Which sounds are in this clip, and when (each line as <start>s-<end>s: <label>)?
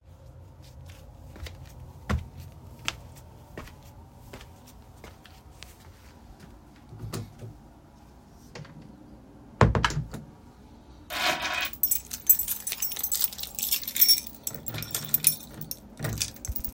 1.3s-9.1s: footsteps
6.9s-10.3s: door
11.1s-16.7s: keys